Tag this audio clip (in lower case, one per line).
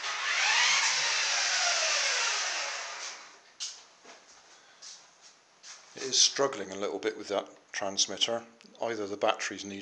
speech
inside a small room